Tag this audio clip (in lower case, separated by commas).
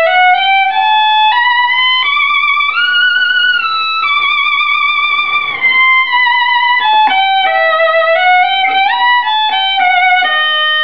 music, fiddle, musical instrument